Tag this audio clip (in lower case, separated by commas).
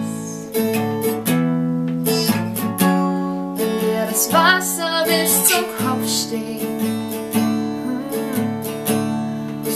female singing, music